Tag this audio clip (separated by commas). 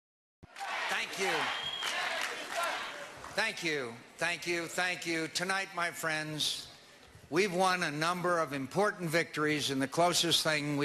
Speech, man speaking, monologue